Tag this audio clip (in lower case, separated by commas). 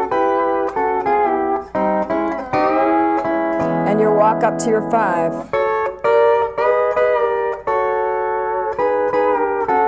playing steel guitar